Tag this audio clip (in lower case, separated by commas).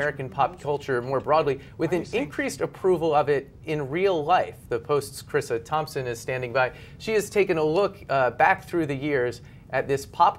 speech